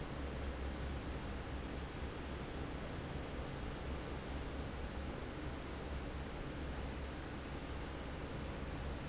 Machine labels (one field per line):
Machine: fan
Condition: normal